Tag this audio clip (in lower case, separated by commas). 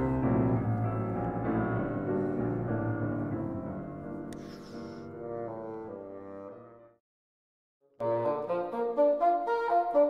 playing bassoon